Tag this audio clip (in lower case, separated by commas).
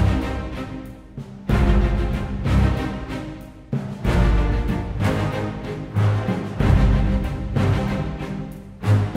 music